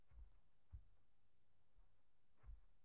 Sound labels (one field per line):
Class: footsteps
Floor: carpet